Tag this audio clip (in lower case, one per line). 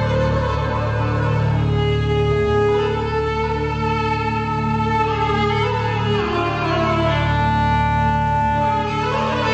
fiddle
music
musical instrument